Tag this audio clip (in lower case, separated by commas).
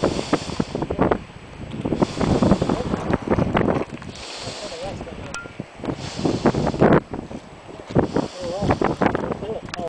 speech